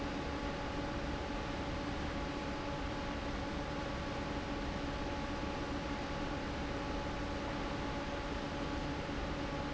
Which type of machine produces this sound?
fan